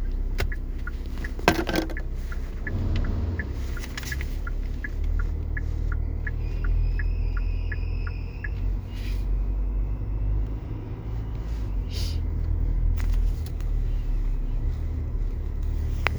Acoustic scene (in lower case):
car